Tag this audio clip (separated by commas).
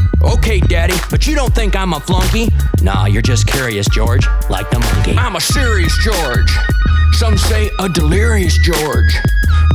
rapping